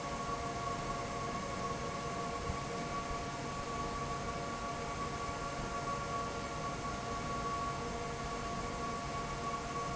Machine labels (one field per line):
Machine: fan